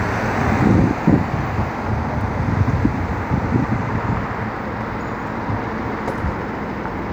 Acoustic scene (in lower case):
street